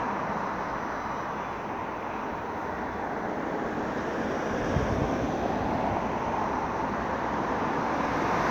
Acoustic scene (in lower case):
street